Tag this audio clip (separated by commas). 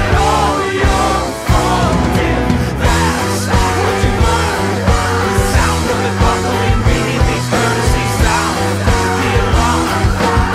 Music, Punk rock